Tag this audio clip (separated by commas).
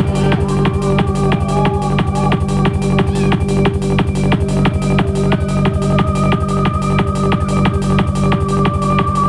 Music